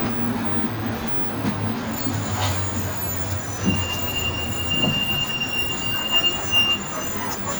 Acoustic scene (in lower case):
bus